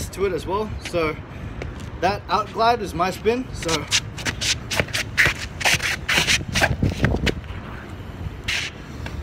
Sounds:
Speech

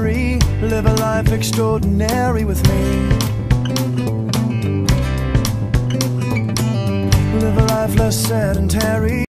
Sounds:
Music

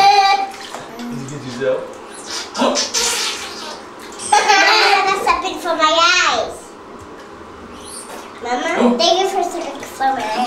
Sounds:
Speech, Bathtub (filling or washing)

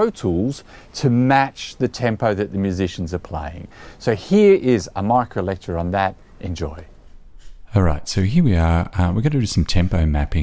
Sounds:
Speech

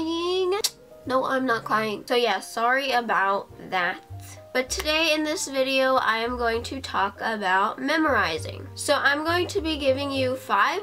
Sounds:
Speech, Music

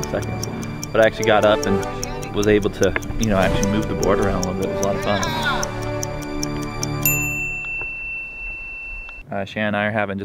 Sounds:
Music, Speech

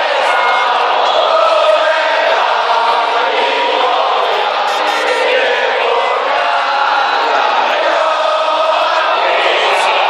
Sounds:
Choir, Music

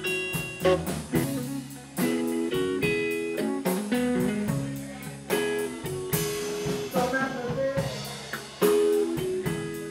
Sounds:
Guitar, Strum, Musical instrument, Music, Plucked string instrument

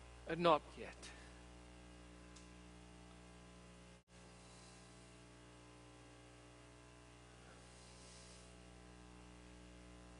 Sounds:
Speech

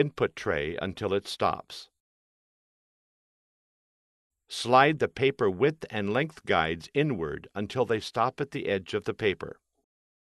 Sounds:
Speech

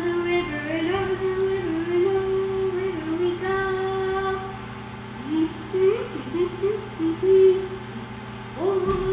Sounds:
Child singing

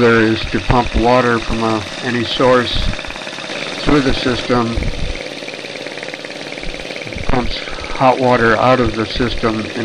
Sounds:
Speech

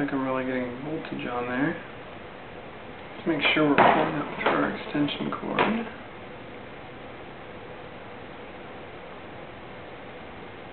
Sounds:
Speech

